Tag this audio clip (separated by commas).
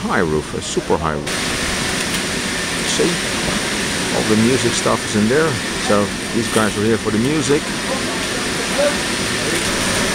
Vehicle, Speech